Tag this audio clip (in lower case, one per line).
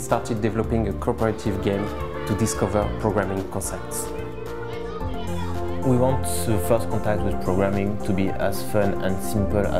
music
speech